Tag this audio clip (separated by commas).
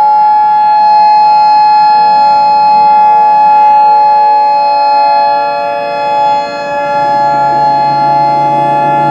Civil defense siren, Siren